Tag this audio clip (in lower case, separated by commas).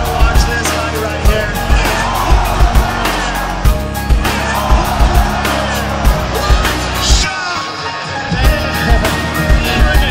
music, speech